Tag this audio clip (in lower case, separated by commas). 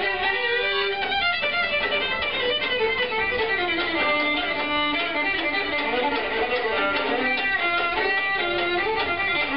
violin, musical instrument, music